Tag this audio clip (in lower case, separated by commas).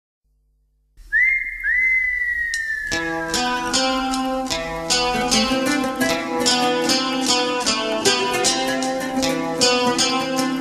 whistling, music